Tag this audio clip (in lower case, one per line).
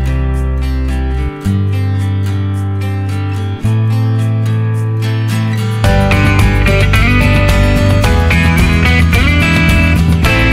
music